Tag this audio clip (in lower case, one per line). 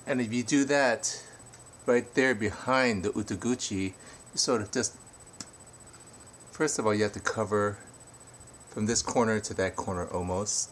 speech